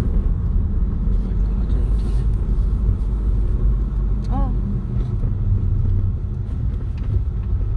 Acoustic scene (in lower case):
car